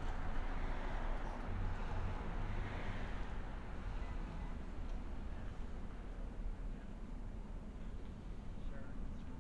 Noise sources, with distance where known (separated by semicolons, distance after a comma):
background noise